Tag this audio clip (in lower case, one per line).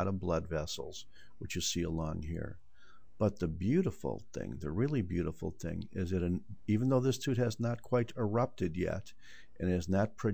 speech